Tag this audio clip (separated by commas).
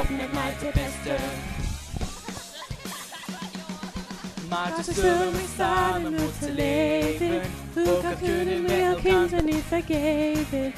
Male singing, Music, Choir, Speech, Female singing